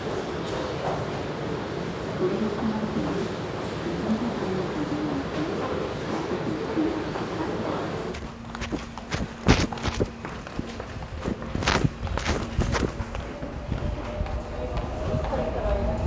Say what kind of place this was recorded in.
subway station